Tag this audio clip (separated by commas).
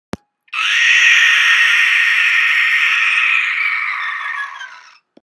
Sound effect